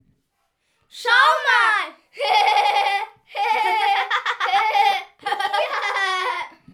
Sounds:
laughter, human voice

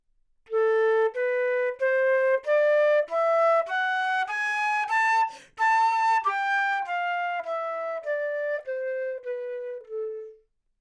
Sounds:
music, woodwind instrument, musical instrument

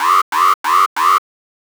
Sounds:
alarm

